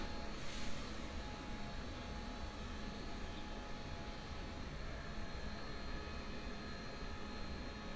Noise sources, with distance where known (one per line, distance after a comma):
engine of unclear size